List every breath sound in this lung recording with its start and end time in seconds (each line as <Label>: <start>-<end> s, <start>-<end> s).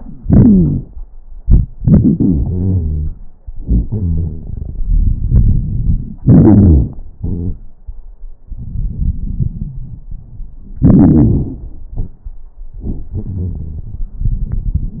Inhalation: 6.21-7.00 s, 10.85-11.62 s
Exhalation: 7.19-7.61 s, 11.93-12.34 s
Wheeze: 0.24-0.81 s, 2.16-3.12 s, 3.63-4.45 s, 7.19-7.61 s, 9.52-9.98 s, 13.18-14.04 s, 14.22-15.00 s
Crackles: 6.21-7.00 s, 10.85-11.62 s, 11.93-12.34 s